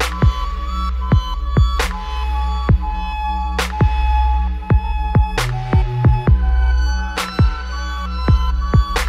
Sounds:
music
sampler

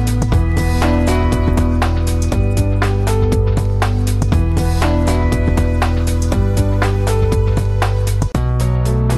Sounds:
music

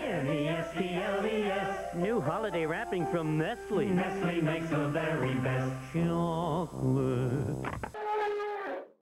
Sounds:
music
speech

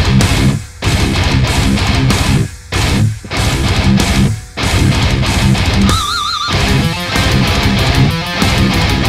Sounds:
guitar
musical instrument
plucked string instrument
electric guitar
music

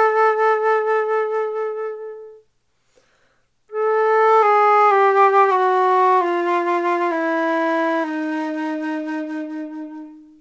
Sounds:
playing flute

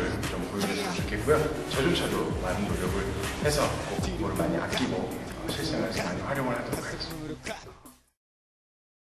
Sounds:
music
speech

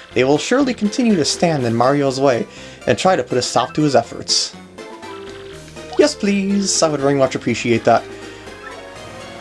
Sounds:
music
speech

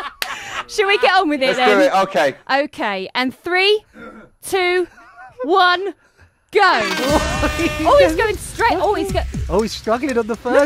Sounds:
music
speech

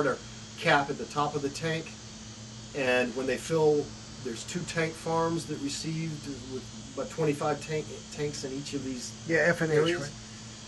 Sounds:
speech

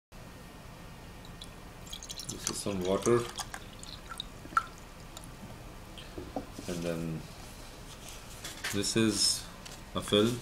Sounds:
water
speech

